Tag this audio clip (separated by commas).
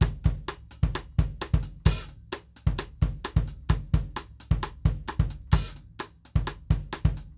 Music, Drum, Percussion, Musical instrument, Drum kit